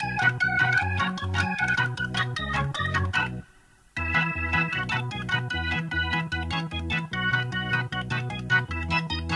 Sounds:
Music, Musical instrument, Keyboard (musical), Piano, playing piano

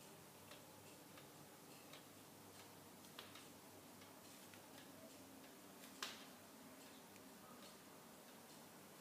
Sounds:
Tick-tock

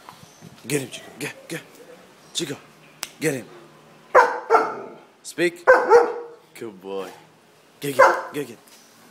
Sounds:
Speech, pets, Animal, Bark, Dog

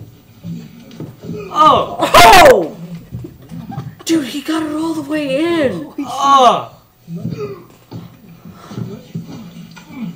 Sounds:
Speech

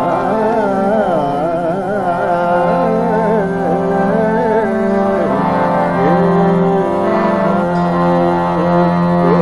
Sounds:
Music, Middle Eastern music, Carnatic music

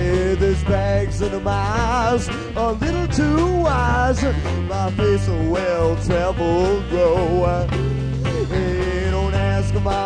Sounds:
Music

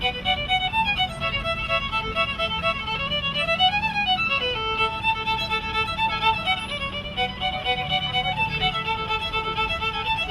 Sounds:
Music, Violin, Musical instrument

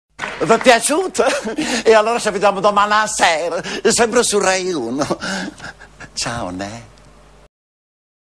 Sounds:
Speech

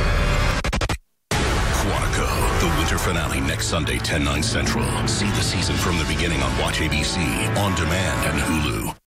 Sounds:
Speech, Music

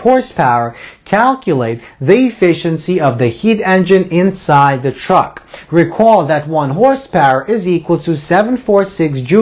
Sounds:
Speech

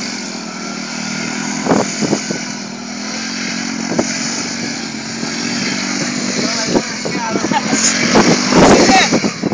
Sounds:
Motorcycle, Speech, Vehicle

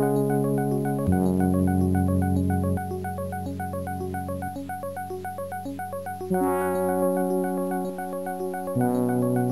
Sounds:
Music

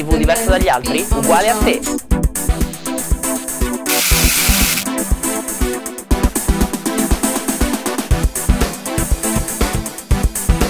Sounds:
Music, Speech

